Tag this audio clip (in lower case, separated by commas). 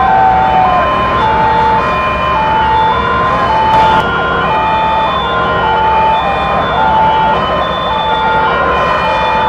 fire engine, vehicle, emergency vehicle